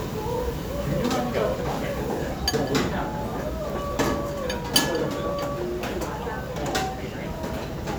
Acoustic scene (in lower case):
restaurant